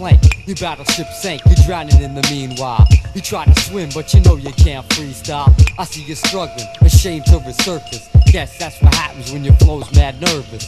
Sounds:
music

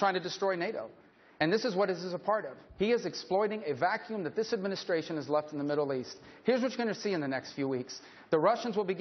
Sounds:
speech

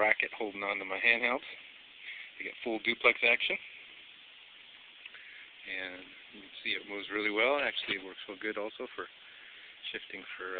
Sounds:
speech

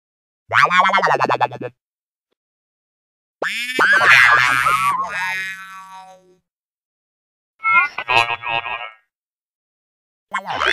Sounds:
sound effect

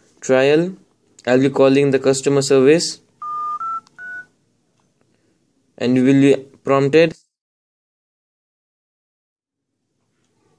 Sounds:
speech, inside a small room

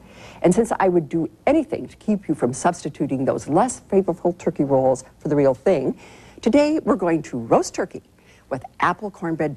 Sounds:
speech

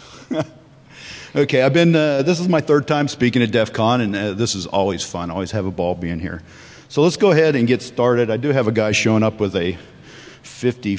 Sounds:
speech

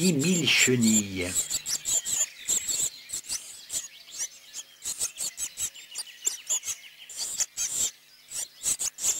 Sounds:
black capped chickadee calling

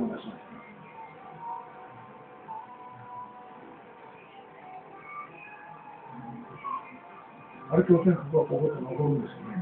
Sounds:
speech, music

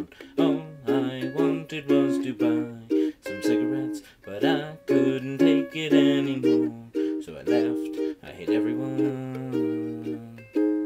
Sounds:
ukulele, music

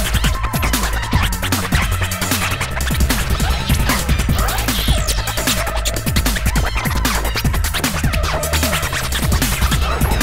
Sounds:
electronic music, scratching (performance technique), music

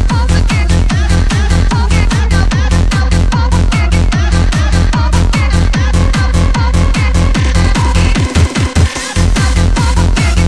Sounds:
techno, music, electronic music

